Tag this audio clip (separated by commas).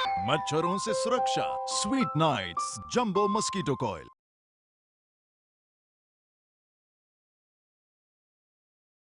Speech, Music